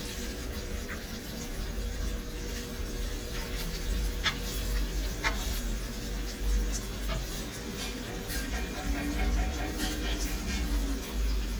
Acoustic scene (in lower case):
kitchen